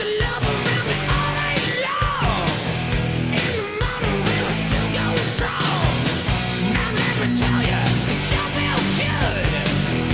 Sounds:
music

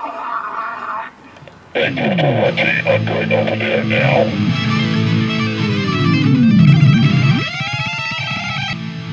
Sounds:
speech, music

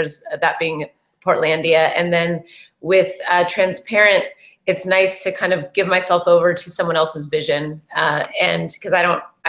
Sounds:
speech

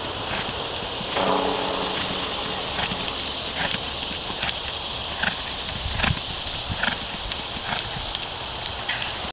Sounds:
horse, clip-clop, horse clip-clop

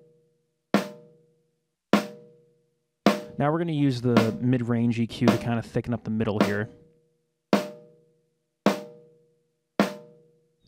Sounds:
percussion, drum, snare drum

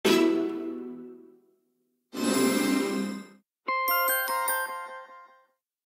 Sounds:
music

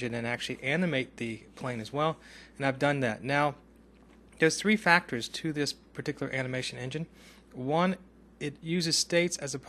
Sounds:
speech

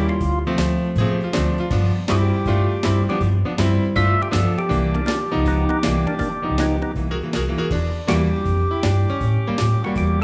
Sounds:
musical instrument, keyboard (musical), piano, music

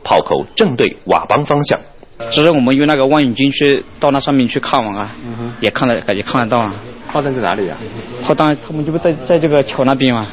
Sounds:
speech

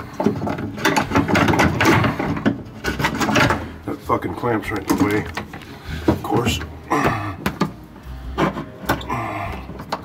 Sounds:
speech

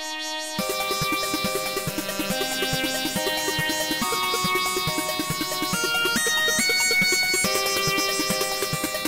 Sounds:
bagpipes

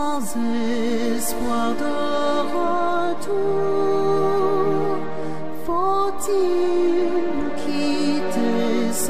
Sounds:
music

